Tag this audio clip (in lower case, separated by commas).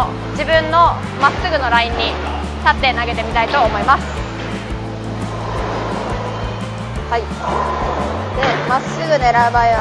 bowling impact